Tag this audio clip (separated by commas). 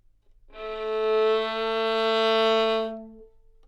Music, Musical instrument, Bowed string instrument